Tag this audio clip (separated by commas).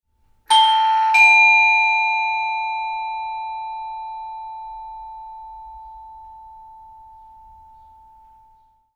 Bell, home sounds, Alarm, Doorbell, Door